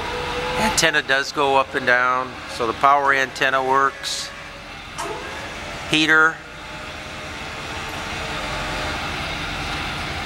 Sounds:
vehicle, speech, car

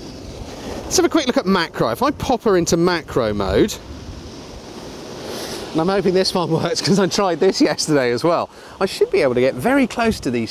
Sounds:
speech

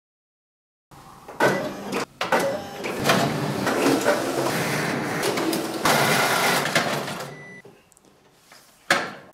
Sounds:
printer printing, printer

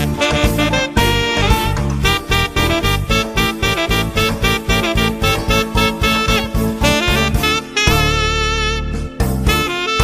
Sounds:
music

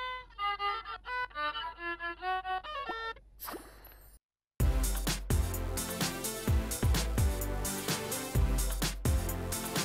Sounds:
musical instrument, violin, music

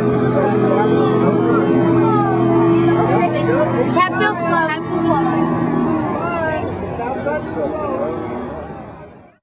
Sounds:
speech

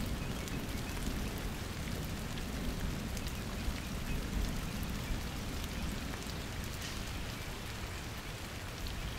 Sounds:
rain on surface, rain

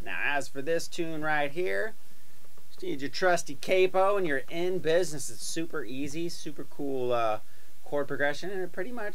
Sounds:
speech

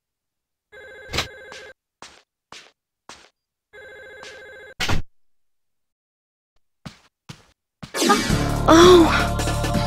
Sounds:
music

